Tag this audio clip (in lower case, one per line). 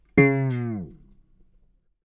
plucked string instrument
music
guitar
musical instrument